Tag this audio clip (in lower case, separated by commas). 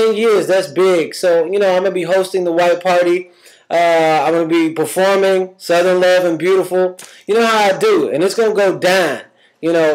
speech